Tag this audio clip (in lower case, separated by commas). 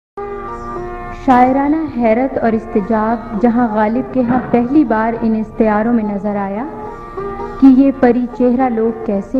speech, music